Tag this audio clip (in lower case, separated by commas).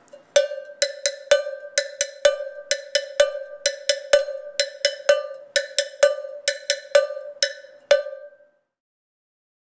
percussion, cowbell